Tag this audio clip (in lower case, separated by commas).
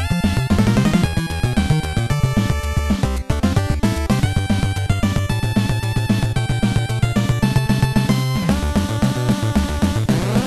music, soundtrack music